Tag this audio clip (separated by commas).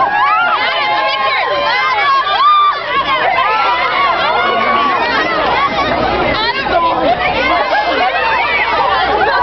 Speech